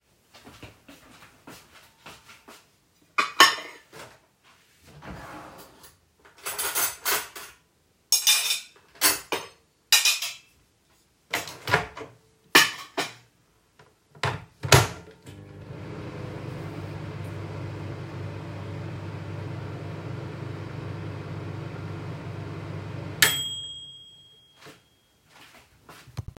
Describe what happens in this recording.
I walked over to the microwave and opened it. I placed my food inside closed the door and started the heating cycle.